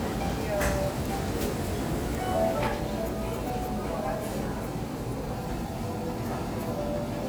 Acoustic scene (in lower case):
restaurant